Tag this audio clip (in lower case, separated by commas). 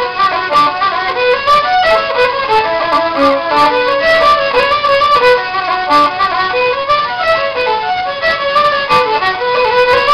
fiddle, musical instrument, music